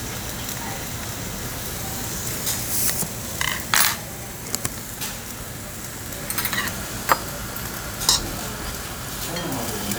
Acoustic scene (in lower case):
restaurant